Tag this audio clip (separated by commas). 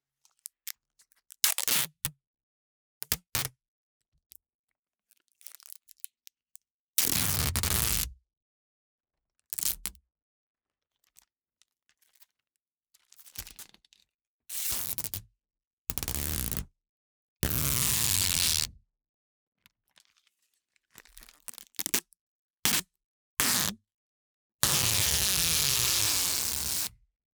Domestic sounds, duct tape